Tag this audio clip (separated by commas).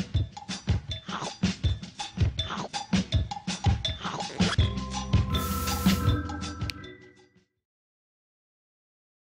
Music